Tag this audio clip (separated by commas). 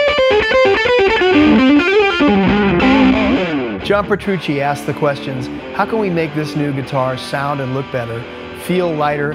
Speech, Distortion, Music